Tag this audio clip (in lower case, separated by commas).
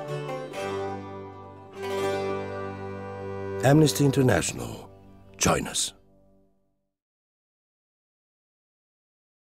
music, speech